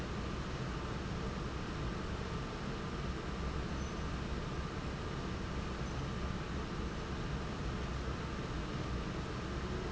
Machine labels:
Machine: fan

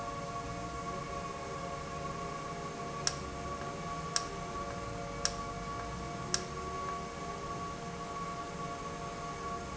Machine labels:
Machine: valve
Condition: normal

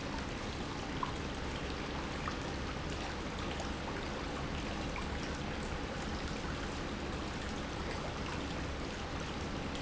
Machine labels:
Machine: pump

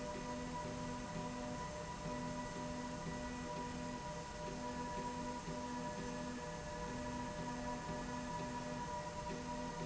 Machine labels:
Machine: slide rail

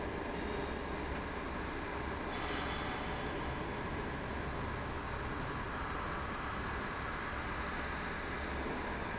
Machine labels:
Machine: fan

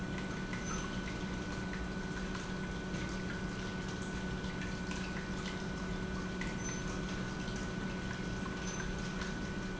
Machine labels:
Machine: pump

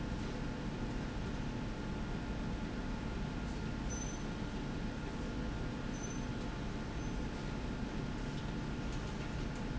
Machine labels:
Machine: slide rail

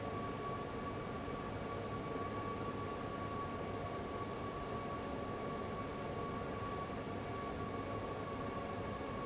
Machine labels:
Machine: fan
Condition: abnormal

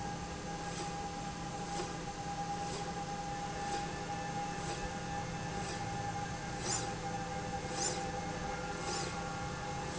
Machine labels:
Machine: slide rail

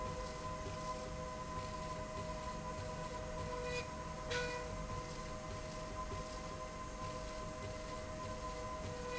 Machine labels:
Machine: slide rail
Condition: normal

